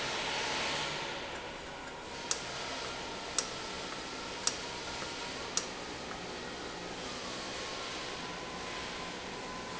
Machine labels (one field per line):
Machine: valve